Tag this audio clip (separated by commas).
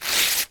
Tearing